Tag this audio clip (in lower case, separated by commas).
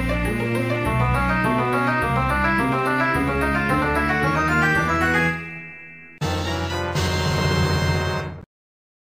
funny music, music